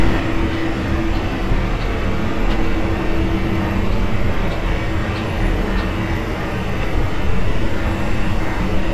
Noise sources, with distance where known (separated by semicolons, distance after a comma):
large-sounding engine, near